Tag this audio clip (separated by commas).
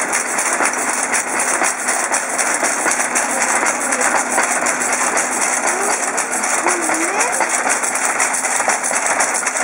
Speech